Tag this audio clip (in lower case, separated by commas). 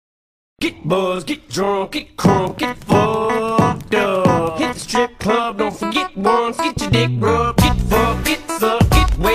rapping, hip hop music, music